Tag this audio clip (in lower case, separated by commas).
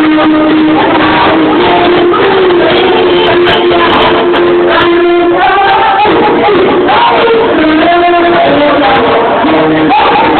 music, female singing